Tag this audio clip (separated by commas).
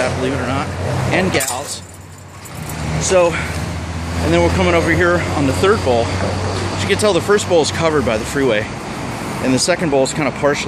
Speech, Vehicle